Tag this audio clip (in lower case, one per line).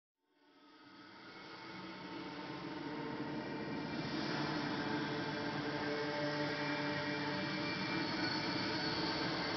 music